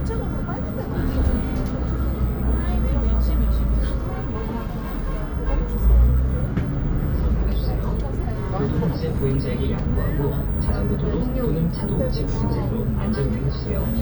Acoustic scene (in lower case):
bus